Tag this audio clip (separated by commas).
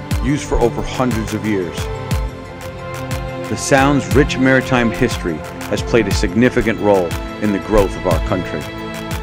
Music, Speech